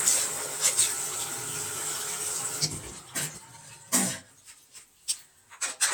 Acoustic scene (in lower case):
restroom